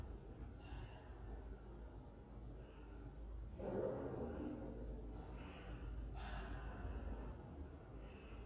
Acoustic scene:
elevator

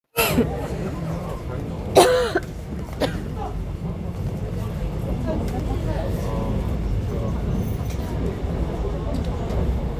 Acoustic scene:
subway train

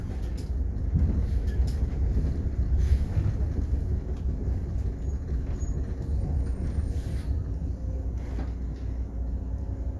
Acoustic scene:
bus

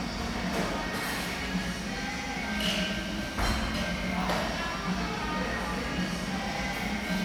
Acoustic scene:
cafe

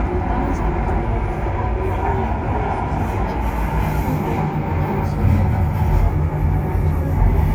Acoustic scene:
subway train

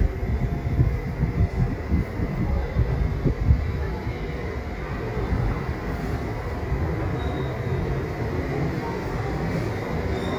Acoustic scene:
subway station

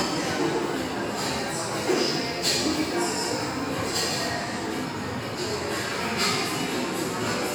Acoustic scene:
restaurant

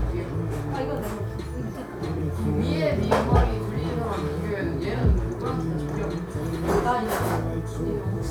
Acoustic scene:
cafe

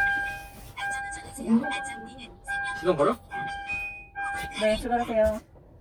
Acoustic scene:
car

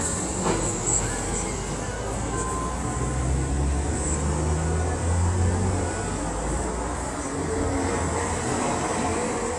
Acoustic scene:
street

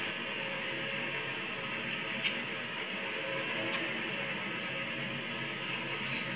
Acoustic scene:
car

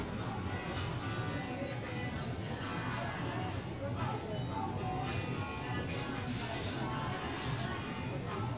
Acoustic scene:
crowded indoor space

